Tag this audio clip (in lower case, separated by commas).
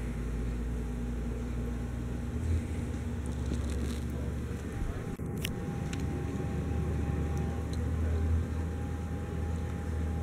mechanical fan